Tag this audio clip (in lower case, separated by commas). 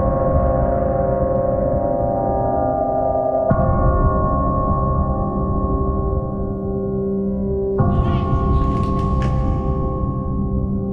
music